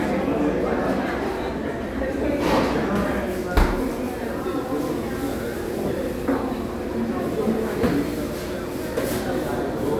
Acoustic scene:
crowded indoor space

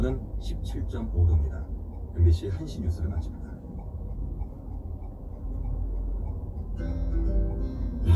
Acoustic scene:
car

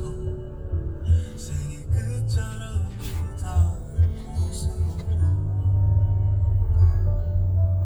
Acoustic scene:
car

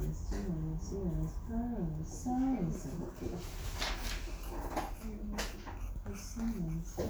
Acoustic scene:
crowded indoor space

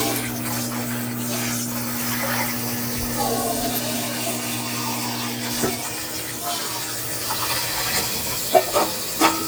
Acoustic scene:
kitchen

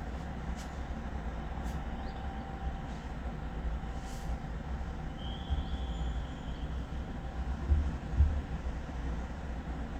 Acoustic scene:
residential area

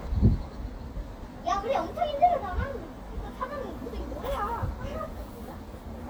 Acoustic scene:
residential area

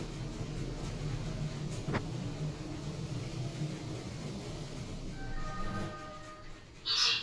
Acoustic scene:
elevator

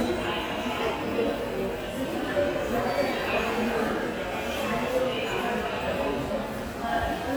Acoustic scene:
subway station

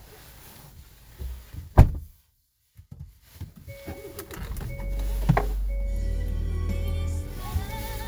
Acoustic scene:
car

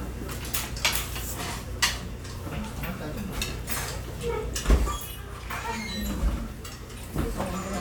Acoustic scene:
restaurant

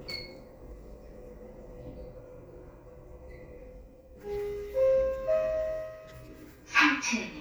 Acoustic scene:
elevator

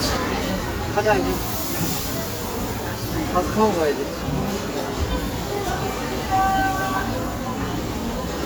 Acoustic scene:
restaurant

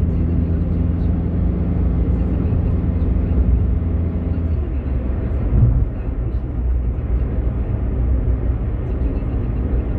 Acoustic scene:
car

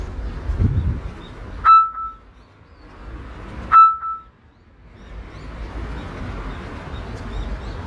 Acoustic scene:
park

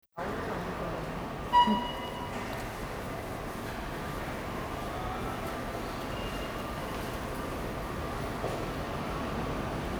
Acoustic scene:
subway station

